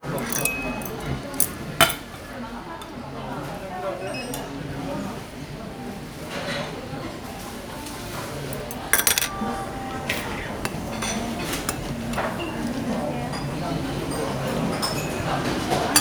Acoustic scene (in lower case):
restaurant